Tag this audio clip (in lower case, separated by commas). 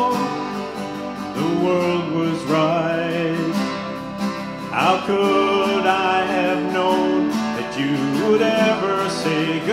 plucked string instrument, guitar, music, strum, musical instrument